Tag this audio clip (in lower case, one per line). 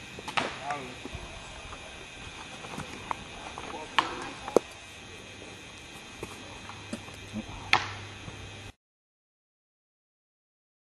speech